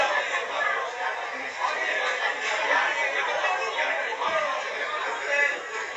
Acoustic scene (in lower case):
crowded indoor space